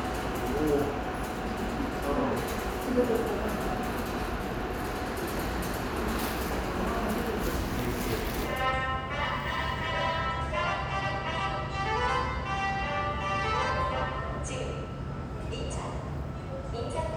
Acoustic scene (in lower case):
subway station